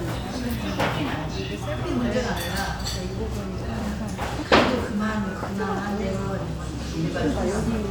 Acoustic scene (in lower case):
restaurant